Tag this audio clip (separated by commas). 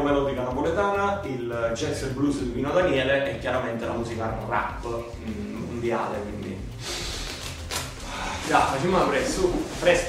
Speech